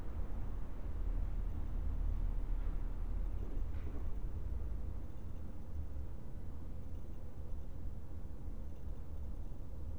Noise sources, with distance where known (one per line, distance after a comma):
background noise